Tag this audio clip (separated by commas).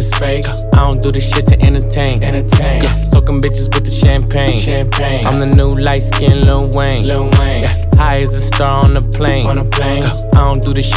rapping